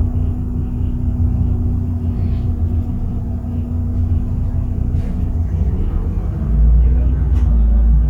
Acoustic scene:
bus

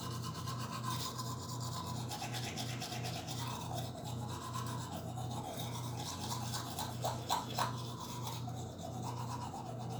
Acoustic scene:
restroom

